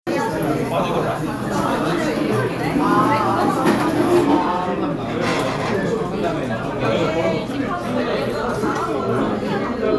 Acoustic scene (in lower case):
restaurant